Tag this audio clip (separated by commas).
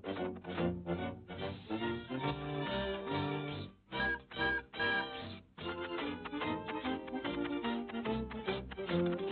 Music